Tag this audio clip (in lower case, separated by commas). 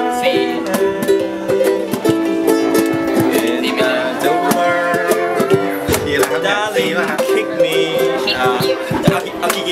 music, speech, ukulele